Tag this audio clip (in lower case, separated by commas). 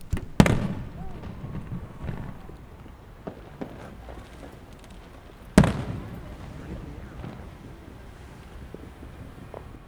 explosion, fireworks